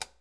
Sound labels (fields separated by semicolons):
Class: switch; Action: being turned on; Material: plastic